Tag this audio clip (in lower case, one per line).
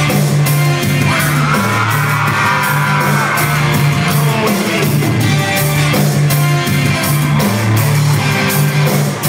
pop music
whoop
music